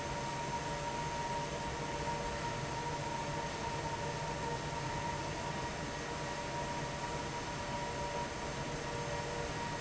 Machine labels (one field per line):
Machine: fan